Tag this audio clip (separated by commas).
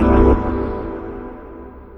Musical instrument, Keyboard (musical), Music, Organ